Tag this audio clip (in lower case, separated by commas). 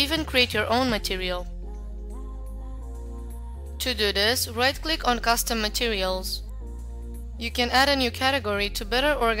music, speech